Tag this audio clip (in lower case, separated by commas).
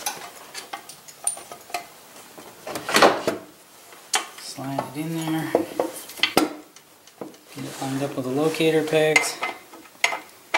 speech